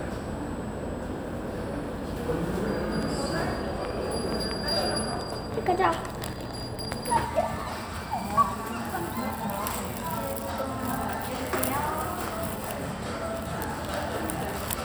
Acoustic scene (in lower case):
cafe